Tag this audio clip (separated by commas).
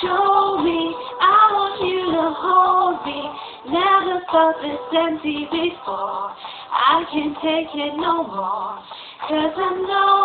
Female singing